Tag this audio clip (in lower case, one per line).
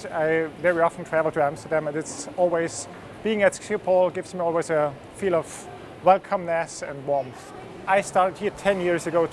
speech